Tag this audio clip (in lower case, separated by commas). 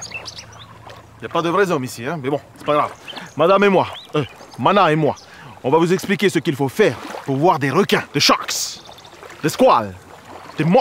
male speech, speech